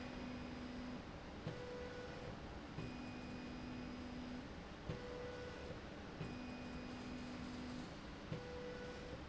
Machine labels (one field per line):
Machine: slide rail